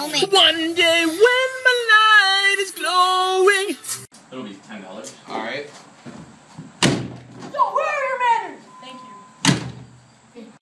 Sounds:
Speech

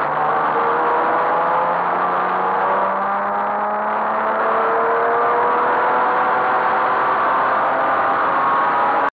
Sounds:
Medium engine (mid frequency), Car, Vehicle

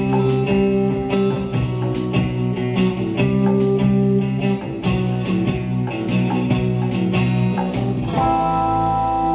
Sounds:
Music, Guitar, Plucked string instrument, Musical instrument, Electric guitar

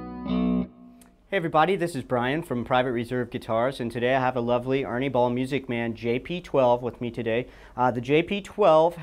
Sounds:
Distortion, Music, Speech

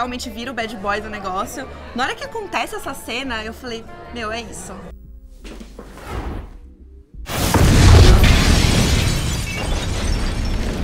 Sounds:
Music, Speech

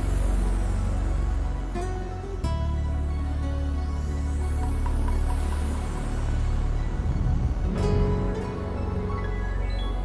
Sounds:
Sound effect, Music

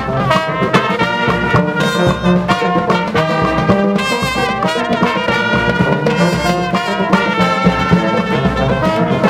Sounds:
Brass instrument, Musical instrument, Music

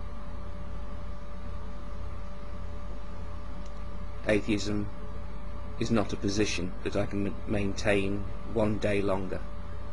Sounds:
Speech

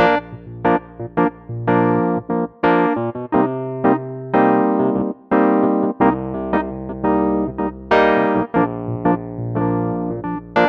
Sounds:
Music, Sampler

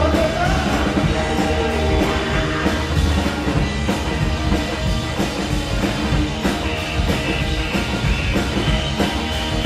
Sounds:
Music, Rock and roll

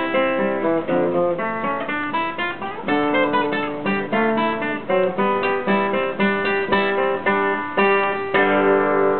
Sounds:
Acoustic guitar, Strum, Musical instrument, Music, Guitar

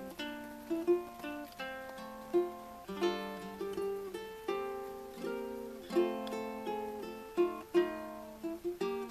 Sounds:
Ukulele, Music

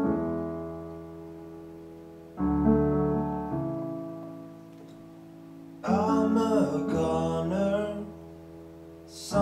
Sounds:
Piano, Keyboard (musical), Musical instrument

